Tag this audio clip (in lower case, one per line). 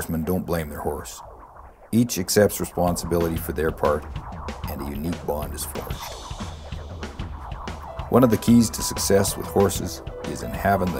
music
speech